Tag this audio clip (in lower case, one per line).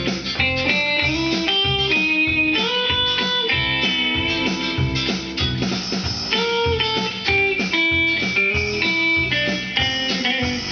music
guitar
electric guitar
musical instrument
plucked string instrument